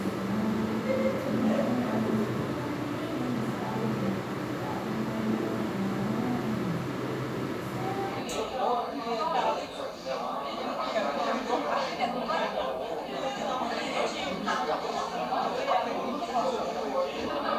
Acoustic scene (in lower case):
crowded indoor space